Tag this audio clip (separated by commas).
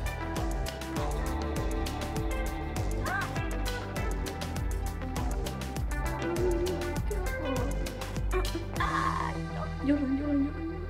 Music